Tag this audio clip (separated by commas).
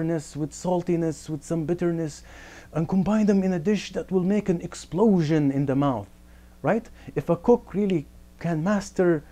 Speech